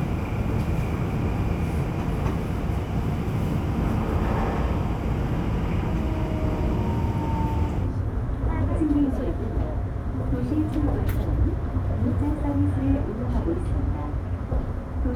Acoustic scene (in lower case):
subway train